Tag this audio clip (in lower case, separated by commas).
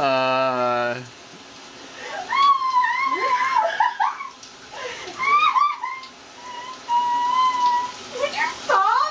inside a small room, speech, bathtub (filling or washing)